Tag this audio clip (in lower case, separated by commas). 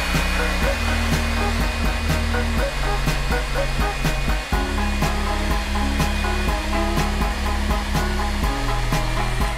hair dryer